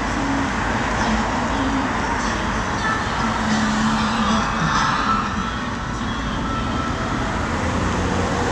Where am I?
on a street